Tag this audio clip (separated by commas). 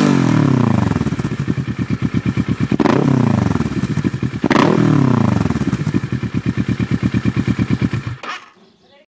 Speech